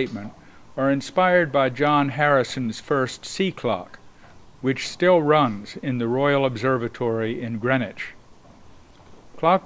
A man speaking continuously